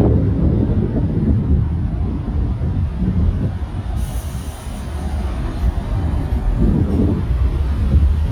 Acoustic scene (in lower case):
street